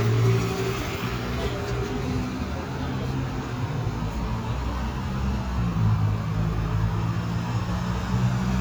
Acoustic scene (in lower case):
street